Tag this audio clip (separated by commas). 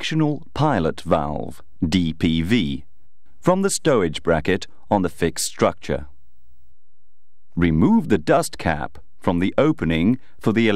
Speech